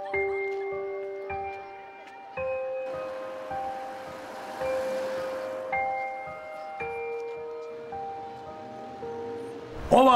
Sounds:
Glockenspiel, Mallet percussion, xylophone

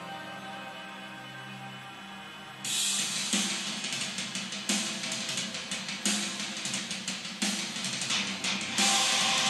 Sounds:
Percussion

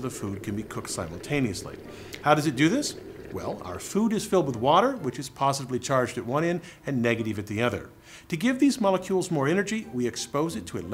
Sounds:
Speech

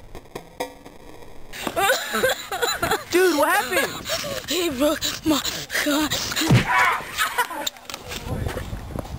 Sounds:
Whack

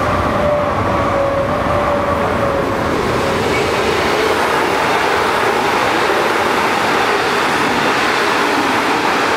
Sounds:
Train

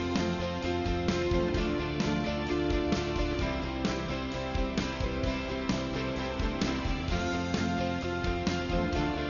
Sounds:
Music

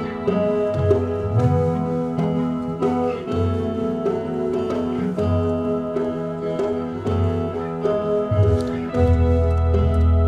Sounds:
Music

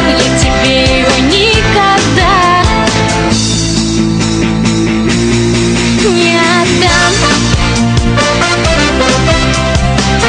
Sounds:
Rock music, Music

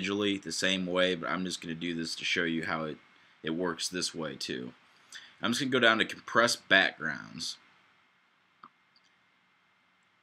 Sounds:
Speech

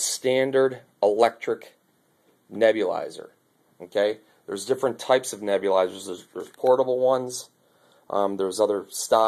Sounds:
Speech

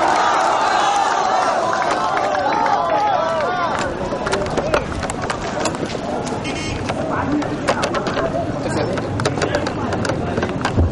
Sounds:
Speech

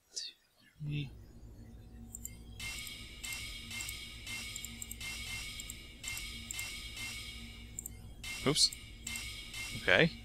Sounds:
Speech

